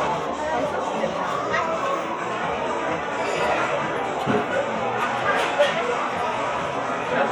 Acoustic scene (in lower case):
cafe